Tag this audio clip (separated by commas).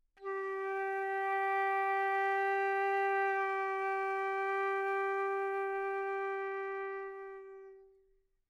Music, Wind instrument, Musical instrument